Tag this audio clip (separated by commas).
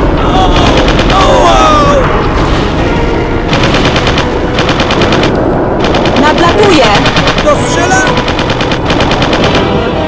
Speech, Music